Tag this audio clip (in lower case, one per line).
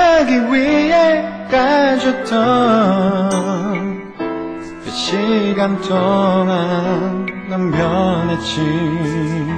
music
male singing